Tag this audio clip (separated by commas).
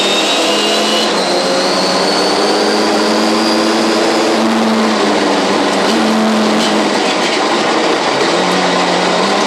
Car passing by, Car, Vehicle, Motor vehicle (road)